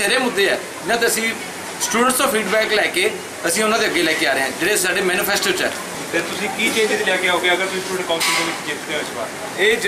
Two men have a conversation, people speak in the distance